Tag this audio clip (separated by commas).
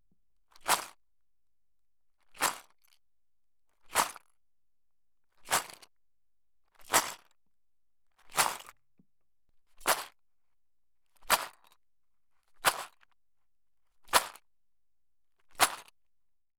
Rattle